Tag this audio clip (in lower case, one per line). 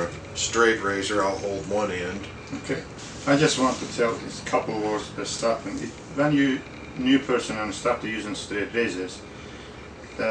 speech